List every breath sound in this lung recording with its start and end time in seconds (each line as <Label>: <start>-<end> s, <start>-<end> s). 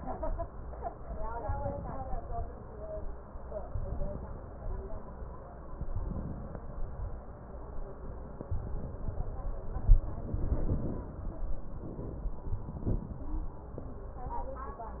Inhalation: 1.46-2.47 s, 3.61-4.62 s, 5.81-6.75 s, 8.49-9.31 s
Exhalation: 4.62-5.22 s, 6.75-7.29 s, 9.31-9.94 s